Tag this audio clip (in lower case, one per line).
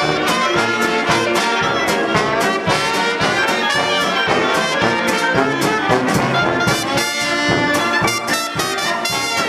music
swing music